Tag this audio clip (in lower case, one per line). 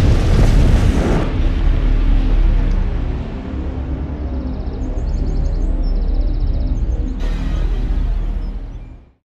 music
explosion